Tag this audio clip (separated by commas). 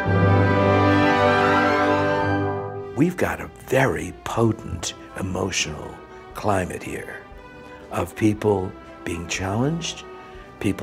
Music, Exciting music, Tender music, Speech